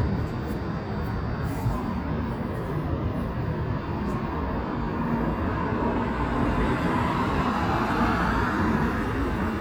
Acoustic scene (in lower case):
street